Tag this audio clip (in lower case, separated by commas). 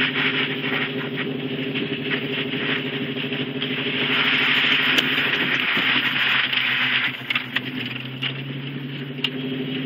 vehicle, truck